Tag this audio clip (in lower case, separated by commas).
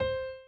musical instrument, music, piano, keyboard (musical)